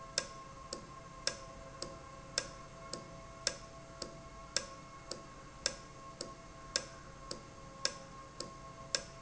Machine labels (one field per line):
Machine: valve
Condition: normal